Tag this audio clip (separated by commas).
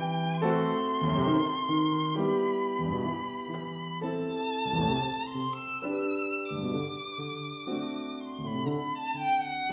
Music, Musical instrument, Violin